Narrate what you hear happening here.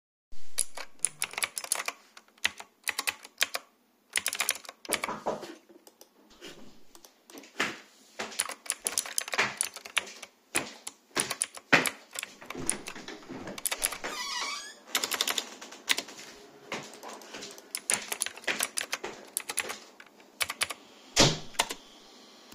I type on the keyboard. Someone knocks on the door. I click the mouse while continuing to type. The person opens the door, walks inside, opens the window, then walks back and closes the door.